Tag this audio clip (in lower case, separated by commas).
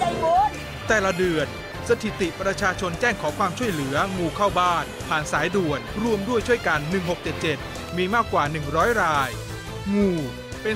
speech, music